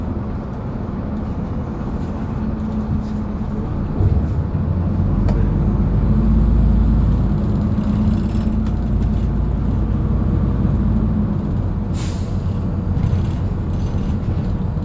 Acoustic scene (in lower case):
bus